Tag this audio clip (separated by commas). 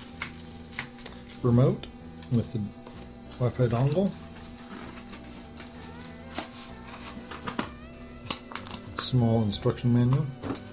Speech, Music